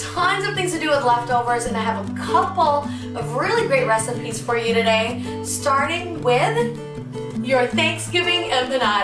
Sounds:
Music, Speech

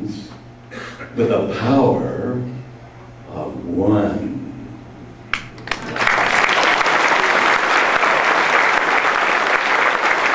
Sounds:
monologue, Speech

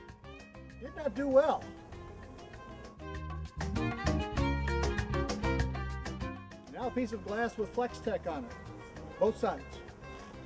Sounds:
Music, Speech

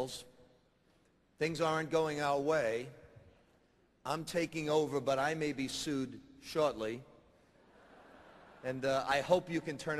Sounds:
Speech, man speaking

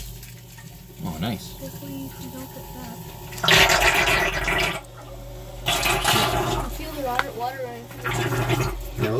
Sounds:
pumping water

